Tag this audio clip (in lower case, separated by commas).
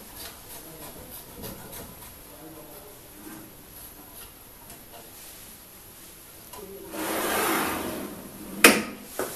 speech